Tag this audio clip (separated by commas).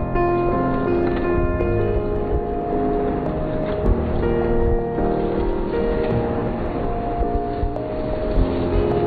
Music